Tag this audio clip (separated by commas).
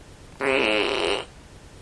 Fart